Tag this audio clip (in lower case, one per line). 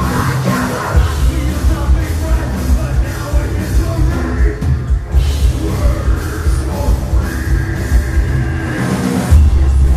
singing
music